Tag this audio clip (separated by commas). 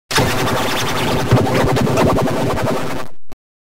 Music